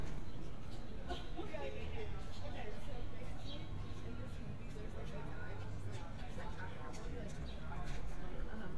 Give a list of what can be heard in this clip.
engine of unclear size, person or small group talking